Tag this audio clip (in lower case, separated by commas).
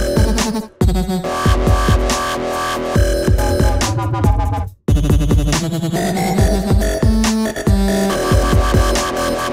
electronic music, music, dubstep